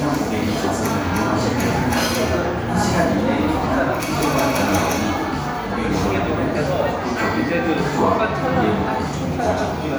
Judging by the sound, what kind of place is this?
crowded indoor space